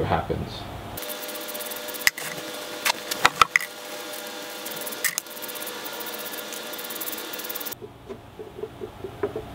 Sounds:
Rub, Wood

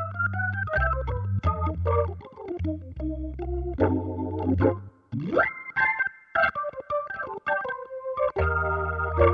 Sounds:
Synthesizer, Music

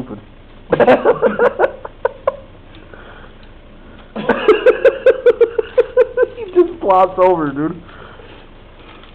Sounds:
Speech

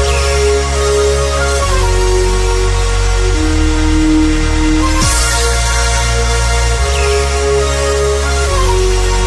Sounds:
Dubstep, Electronic music, Music

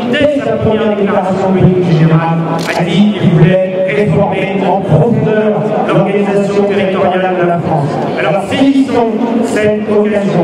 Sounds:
Speech

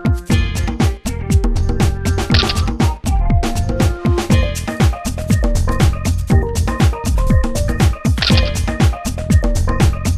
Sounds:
Music

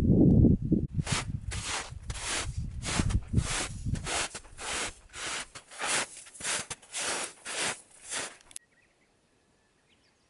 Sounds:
footsteps on snow

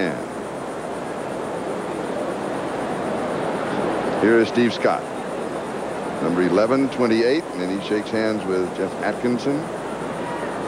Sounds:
outside, urban or man-made, Speech

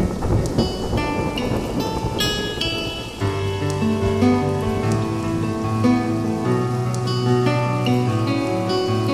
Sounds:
Raindrop, Rain

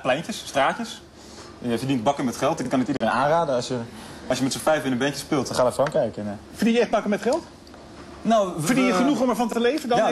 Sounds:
Speech

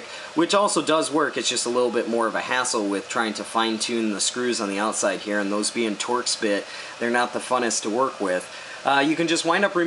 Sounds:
Speech

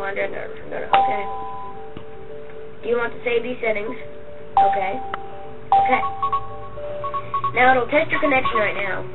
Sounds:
Music, Speech, inside a small room

